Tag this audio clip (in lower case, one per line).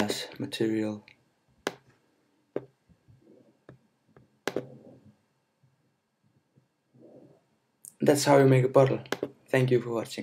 speech